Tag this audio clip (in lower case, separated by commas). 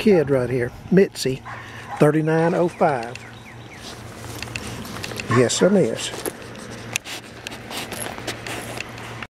speech, canids, bark, pets, animal, dog